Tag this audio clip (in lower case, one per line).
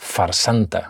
male speech
speech
human voice